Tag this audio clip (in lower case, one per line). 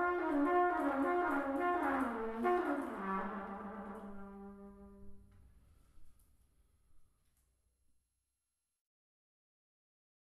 musical instrument
trumpet
music